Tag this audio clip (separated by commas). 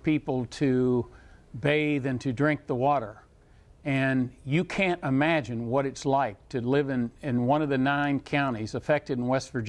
Speech